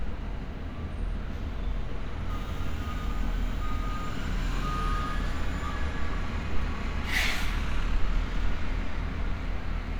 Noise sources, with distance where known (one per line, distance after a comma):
engine of unclear size, near